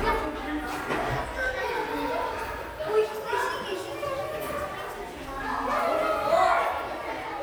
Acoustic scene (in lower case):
crowded indoor space